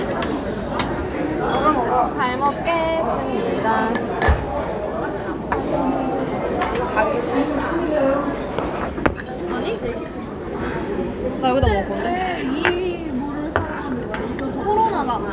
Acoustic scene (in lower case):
crowded indoor space